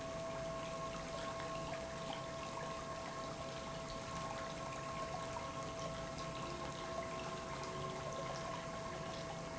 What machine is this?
pump